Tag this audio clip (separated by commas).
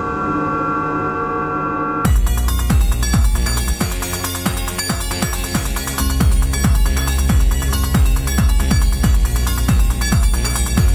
Music